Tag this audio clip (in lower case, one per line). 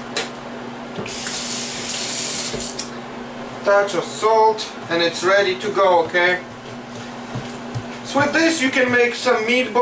speech